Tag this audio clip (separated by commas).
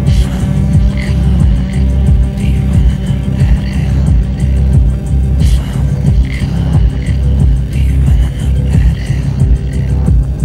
Music